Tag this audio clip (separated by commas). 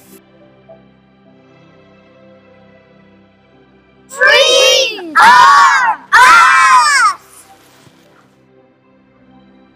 Speech, Screaming, Music, people screaming